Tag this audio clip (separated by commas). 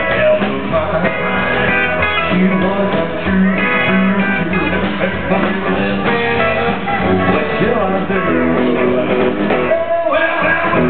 Music, Independent music